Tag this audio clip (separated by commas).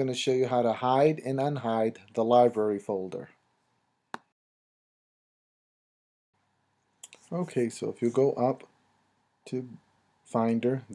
Speech